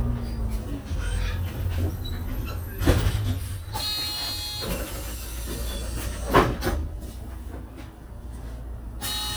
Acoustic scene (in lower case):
bus